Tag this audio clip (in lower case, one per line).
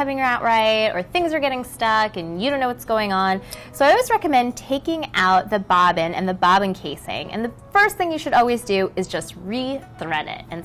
female speech
music
speech